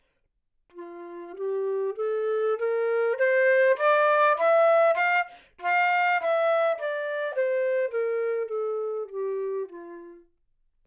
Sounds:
wind instrument, music, musical instrument

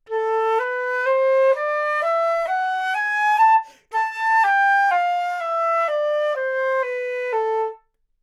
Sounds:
musical instrument, music, wind instrument

